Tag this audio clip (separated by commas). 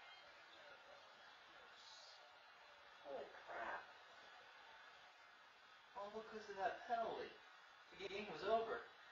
Speech